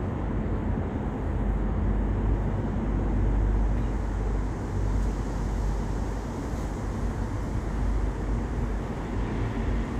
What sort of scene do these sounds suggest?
residential area